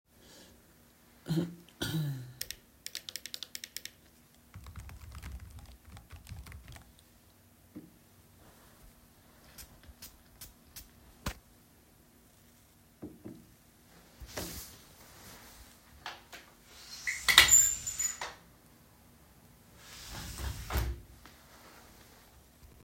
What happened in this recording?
I coughed, I was sitting at my desk clicking the mouse and typing on the keyboard.then sprayed some perfume. I got up, opened the window, then closed it.